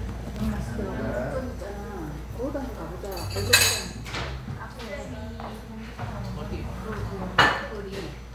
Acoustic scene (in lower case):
restaurant